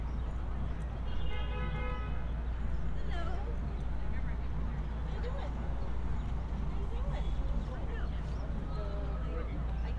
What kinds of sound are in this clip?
car horn, person or small group talking